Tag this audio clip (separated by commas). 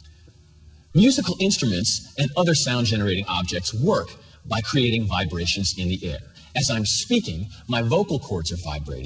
Speech